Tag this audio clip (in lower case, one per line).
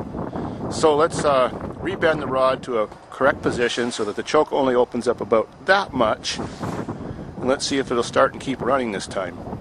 speech